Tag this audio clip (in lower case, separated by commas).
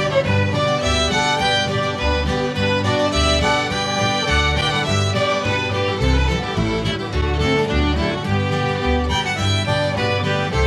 music